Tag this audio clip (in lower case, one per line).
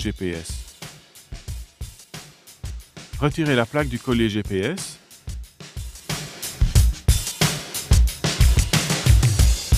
speech
music